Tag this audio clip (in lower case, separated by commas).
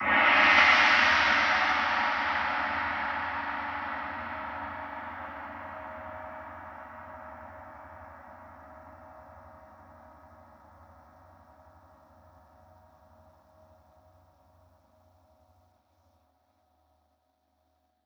music, percussion, musical instrument, gong